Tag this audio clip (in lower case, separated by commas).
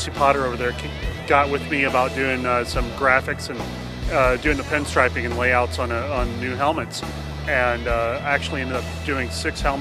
music, speech